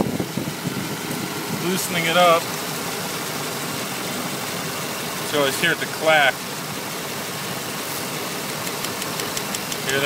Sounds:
Speech, Engine

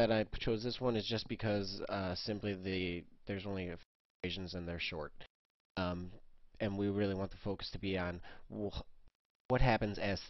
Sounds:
Speech

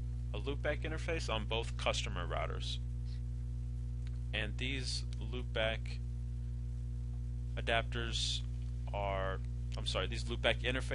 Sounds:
Speech

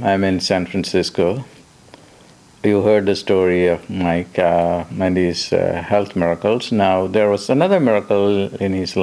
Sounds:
Speech

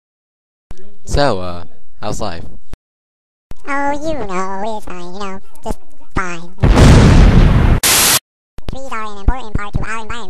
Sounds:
Explosion, Speech

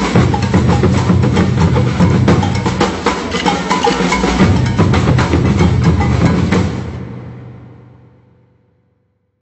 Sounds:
Music

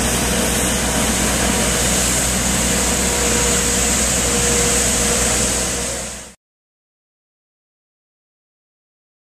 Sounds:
Motor vehicle (road), Vehicle

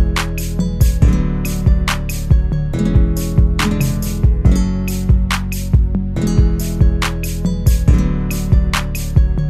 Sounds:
Acoustic guitar, Strum, Music, Guitar, Musical instrument, Plucked string instrument

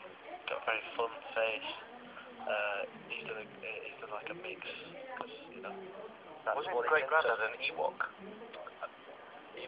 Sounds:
Radio, Speech

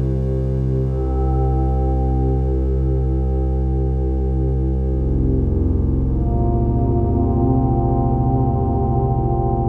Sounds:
playing synthesizer

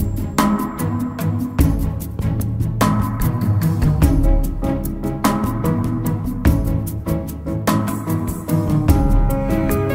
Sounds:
Music

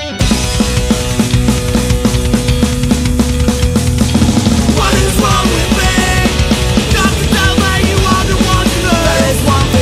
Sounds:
Music

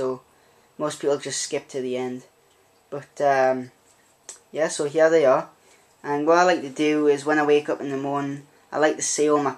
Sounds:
Speech

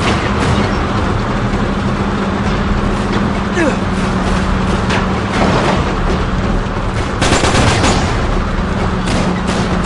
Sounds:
Truck, Vehicle

